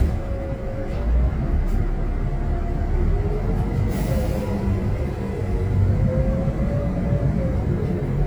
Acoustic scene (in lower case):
bus